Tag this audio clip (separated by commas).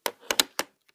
Telephone, Alarm